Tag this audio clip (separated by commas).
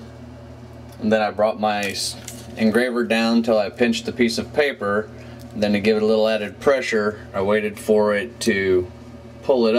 Speech